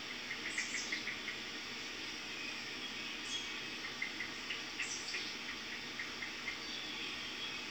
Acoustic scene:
park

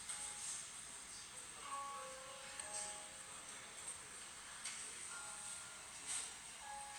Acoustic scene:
cafe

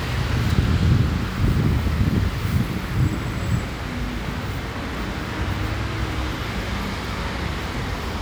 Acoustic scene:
street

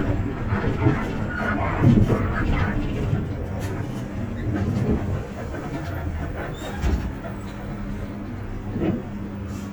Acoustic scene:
bus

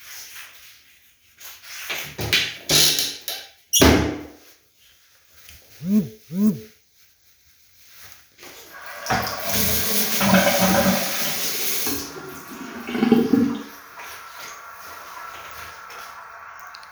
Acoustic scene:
restroom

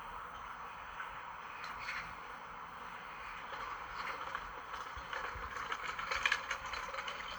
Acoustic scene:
park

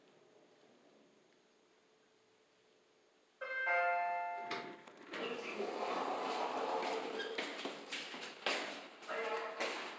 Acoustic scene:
elevator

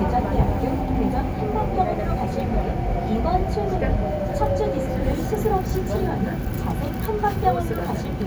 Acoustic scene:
subway station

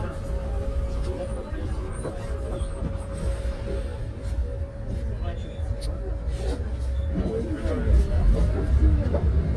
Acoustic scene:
bus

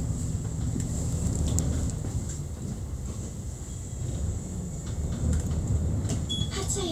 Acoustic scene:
bus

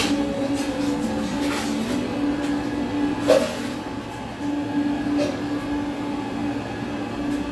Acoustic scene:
cafe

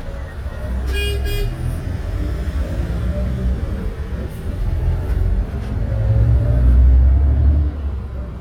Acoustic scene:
bus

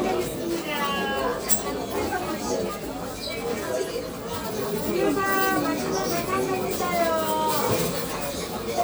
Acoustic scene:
crowded indoor space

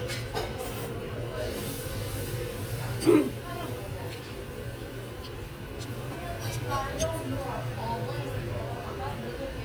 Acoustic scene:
restaurant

